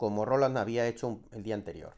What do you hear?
speech